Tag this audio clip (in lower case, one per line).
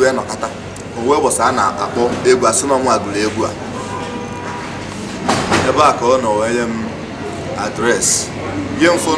speech